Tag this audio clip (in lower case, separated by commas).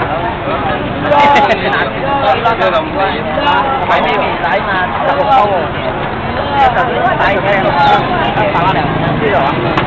speech